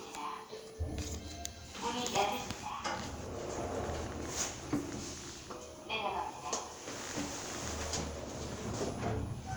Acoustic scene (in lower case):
elevator